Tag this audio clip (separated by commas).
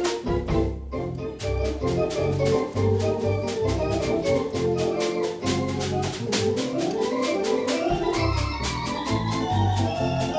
playing hammond organ